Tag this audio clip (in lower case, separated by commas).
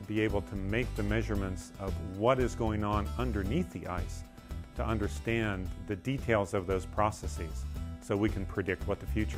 music, speech